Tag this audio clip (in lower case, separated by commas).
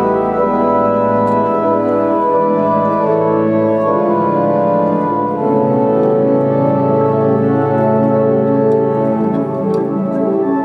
musical instrument, piano, music, keyboard (musical)